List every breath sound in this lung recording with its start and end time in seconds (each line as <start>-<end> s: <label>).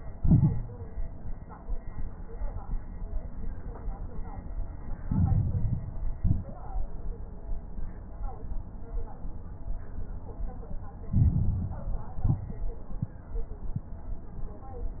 0.13-0.85 s: exhalation
0.13-0.85 s: crackles
5.02-5.89 s: inhalation
5.02-5.89 s: crackles
6.16-6.59 s: exhalation
6.16-6.59 s: crackles
11.08-11.95 s: inhalation
11.08-11.95 s: crackles
12.20-12.63 s: exhalation
12.20-12.63 s: crackles